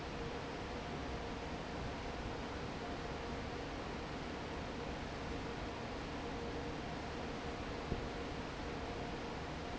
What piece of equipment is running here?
fan